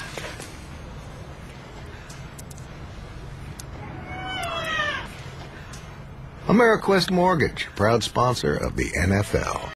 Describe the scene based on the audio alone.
A cat meows and a man talks